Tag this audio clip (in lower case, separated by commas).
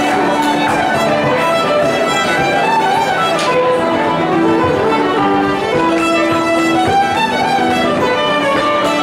rhythm and blues, music